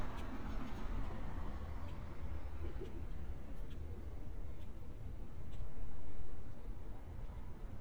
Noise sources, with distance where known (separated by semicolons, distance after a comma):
background noise